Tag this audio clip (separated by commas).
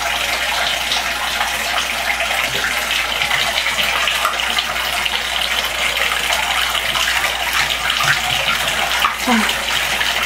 Speech, Fill (with liquid), Bathtub (filling or washing)